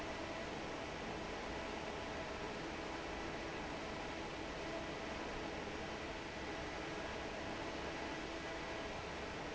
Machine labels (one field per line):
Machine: fan